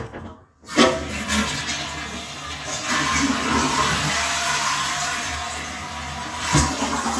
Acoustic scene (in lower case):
restroom